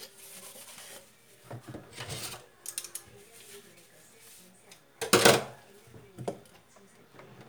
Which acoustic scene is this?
kitchen